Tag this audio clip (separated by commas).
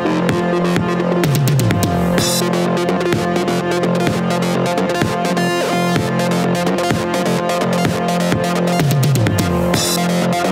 Music